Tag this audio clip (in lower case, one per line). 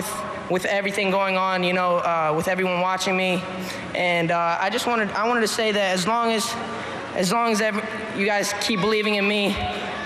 speech